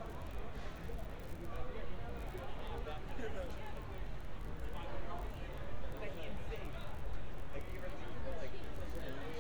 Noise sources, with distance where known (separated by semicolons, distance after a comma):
person or small group talking, near